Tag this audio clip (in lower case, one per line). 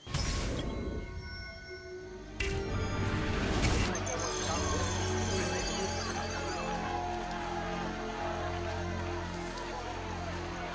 speech
music